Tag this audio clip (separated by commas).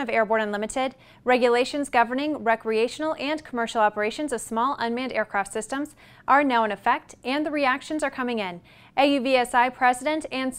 Speech